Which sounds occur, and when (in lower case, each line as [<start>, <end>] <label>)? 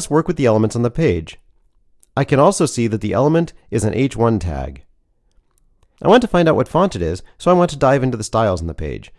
[0.00, 1.32] male speech
[0.00, 9.15] background noise
[1.95, 2.13] generic impact sounds
[2.13, 3.49] male speech
[3.67, 4.86] male speech
[5.29, 5.62] generic impact sounds
[5.80, 5.95] generic impact sounds
[5.95, 7.24] male speech
[7.38, 9.10] male speech